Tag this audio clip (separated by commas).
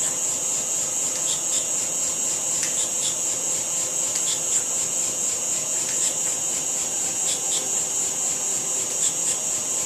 inside a small room